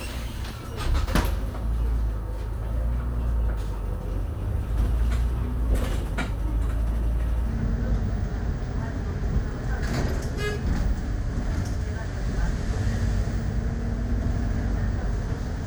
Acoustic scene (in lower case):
bus